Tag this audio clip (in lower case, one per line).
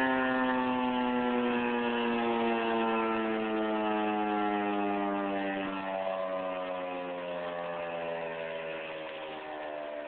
siren